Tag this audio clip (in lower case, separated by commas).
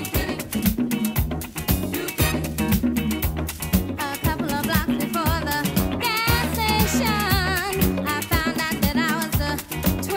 salsa music, drum, drum kit, music